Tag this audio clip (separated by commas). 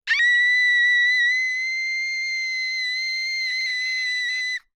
Human voice, Screaming